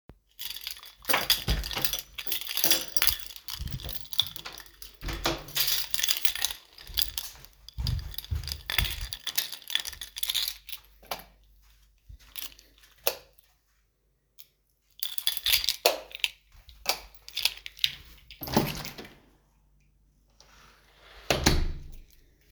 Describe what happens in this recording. While my keys were jiggling, I opened the door, closed it from the other side, and crossed the hallway. I flipped two lightswitches on and then off. Finally, I left the apartment through the front door, closing it behind me.